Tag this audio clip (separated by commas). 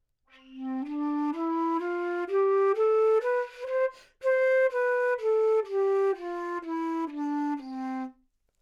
Music, Wind instrument, Musical instrument